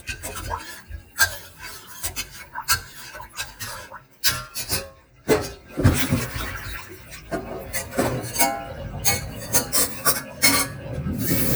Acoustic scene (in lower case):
kitchen